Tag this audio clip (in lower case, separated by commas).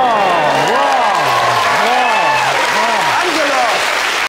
speech